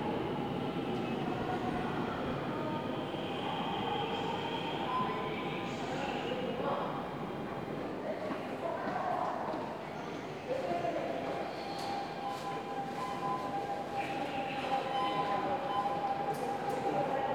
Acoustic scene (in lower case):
subway station